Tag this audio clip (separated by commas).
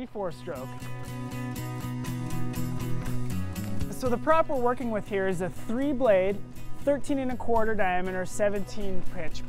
Speech, Music